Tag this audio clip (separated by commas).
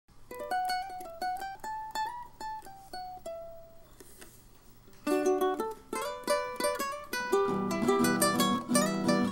Music, Ukulele